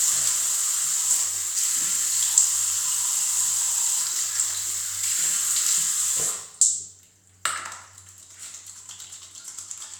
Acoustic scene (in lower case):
restroom